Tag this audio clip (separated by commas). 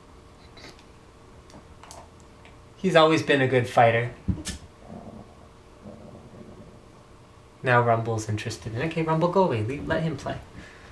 Speech